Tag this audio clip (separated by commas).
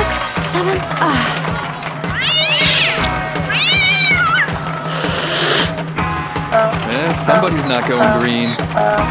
Music, Speech